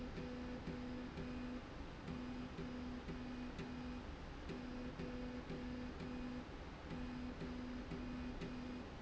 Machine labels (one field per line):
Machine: slide rail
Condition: normal